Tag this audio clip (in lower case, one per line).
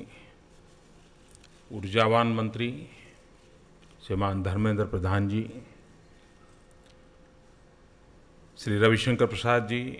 male speech
speech
monologue